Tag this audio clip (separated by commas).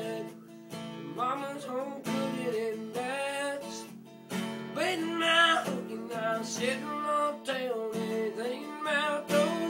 Music, Male singing